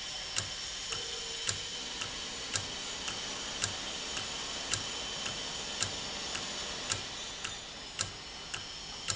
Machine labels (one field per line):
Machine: valve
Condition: normal